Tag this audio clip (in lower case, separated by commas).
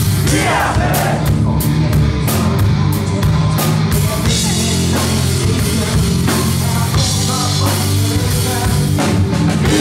music